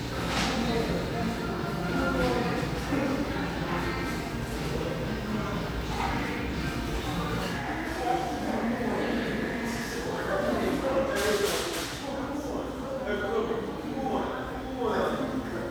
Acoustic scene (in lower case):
cafe